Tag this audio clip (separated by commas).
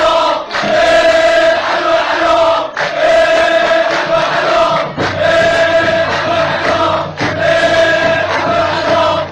Music